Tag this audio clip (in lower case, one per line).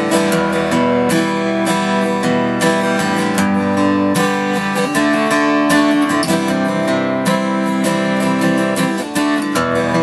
strum
music
musical instrument
plucked string instrument
guitar